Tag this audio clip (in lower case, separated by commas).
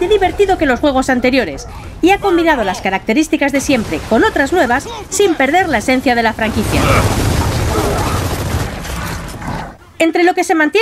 speech